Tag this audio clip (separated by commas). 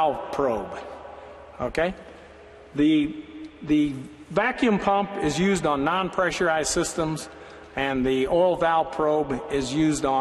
Speech